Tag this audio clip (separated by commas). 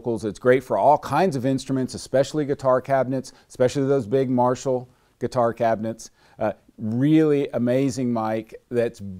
Speech